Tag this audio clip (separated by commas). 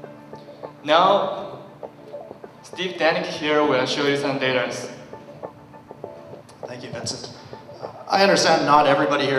Speech, Music